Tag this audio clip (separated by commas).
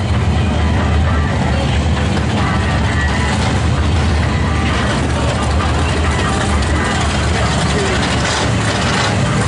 Idling, Vehicle, Engine, Car, Music, Medium engine (mid frequency)